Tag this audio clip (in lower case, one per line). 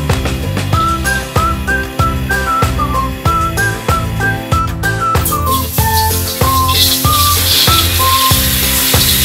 music